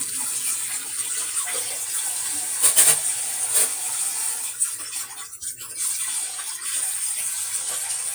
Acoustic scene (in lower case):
kitchen